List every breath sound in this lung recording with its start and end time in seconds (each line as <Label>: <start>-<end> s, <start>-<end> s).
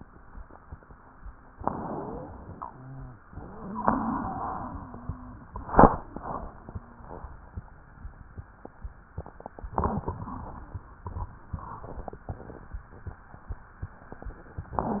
Inhalation: 1.49-2.57 s
Exhalation: 2.61-3.25 s
Wheeze: 1.85-2.27 s, 2.71-3.13 s, 3.53-4.62 s